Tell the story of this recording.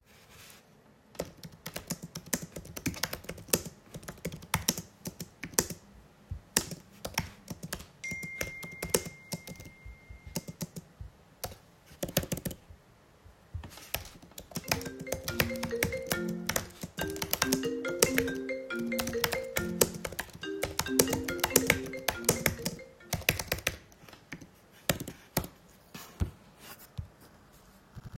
I was typing on my keyboard, while at the same time I received a notification. Shortly after that, my phone started ringing, then it stopped and i finished my work on the computer.